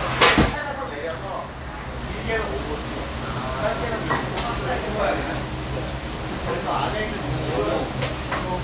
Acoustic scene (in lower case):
restaurant